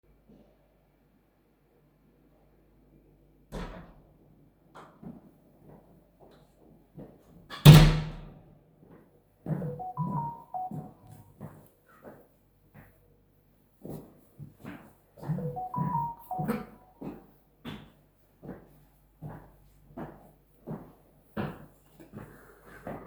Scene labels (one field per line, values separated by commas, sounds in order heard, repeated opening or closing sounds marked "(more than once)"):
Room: kitchen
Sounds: door (more than once), footsteps, phone ringing